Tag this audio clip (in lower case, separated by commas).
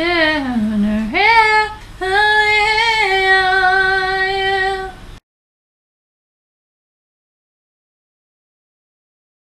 female singing